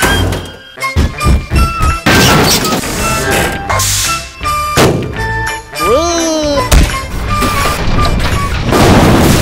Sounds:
Music

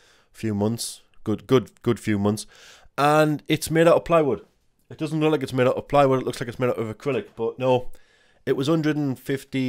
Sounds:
Speech

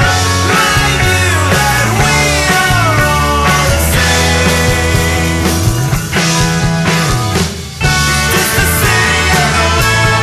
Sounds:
Music, Rock music, Grunge

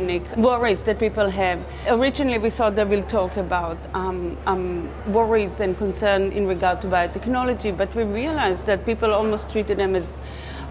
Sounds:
Female speech

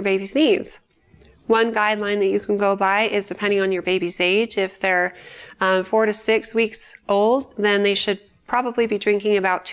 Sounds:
Speech

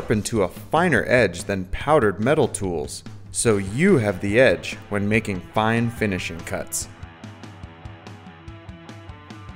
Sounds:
Music, Speech

